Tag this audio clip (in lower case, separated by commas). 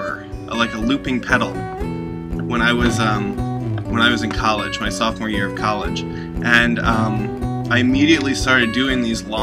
music, speech